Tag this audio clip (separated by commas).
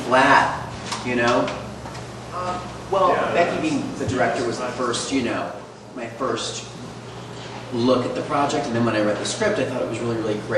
Speech